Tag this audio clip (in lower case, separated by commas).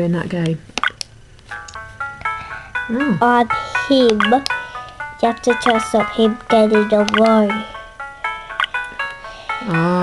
speech